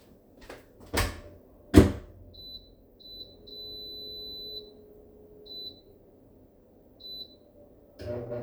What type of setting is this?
kitchen